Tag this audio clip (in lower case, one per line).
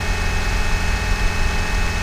engine